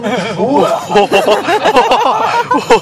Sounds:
laughter
human voice

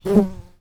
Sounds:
animal
wild animals
insect

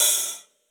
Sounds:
percussion
musical instrument
music
cymbal
hi-hat

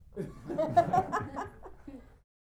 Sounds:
human voice
chuckle
laughter

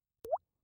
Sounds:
rain
water
liquid
raindrop
drip

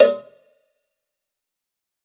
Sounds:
bell
cowbell

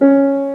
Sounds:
musical instrument
music
piano
keyboard (musical)

